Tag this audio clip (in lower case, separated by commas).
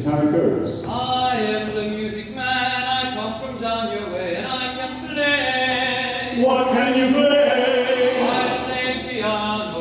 speech